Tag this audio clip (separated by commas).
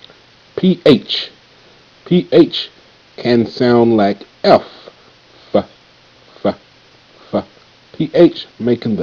Speech